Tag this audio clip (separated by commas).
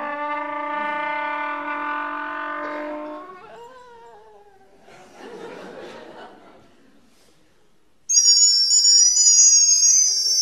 Music